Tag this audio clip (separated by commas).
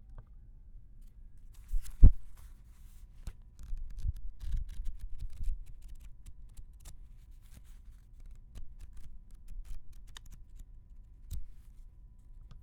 Tearing